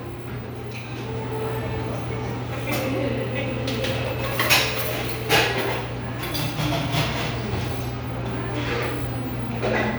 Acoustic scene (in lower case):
cafe